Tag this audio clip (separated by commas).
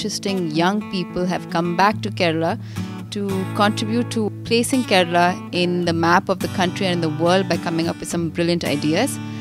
Music, Speech